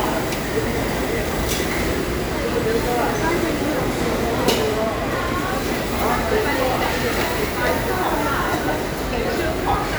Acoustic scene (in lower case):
restaurant